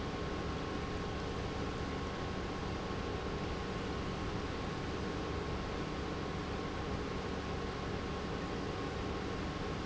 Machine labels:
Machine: pump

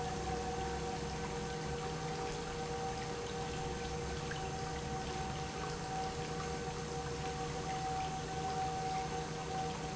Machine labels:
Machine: pump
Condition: normal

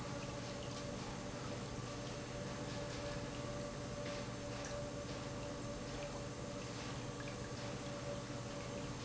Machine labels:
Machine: pump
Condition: normal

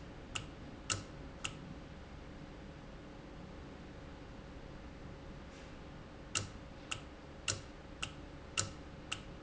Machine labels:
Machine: valve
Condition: normal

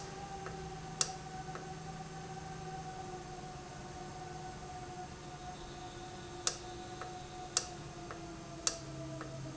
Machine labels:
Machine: valve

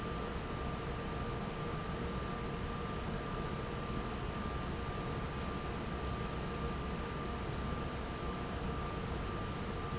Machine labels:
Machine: fan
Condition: normal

